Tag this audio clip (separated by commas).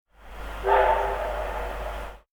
Vehicle, Rail transport, Train